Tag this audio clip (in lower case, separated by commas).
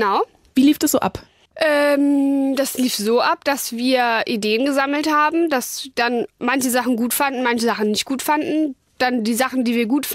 speech, radio